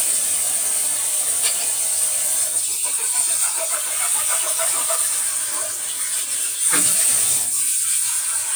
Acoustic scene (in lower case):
kitchen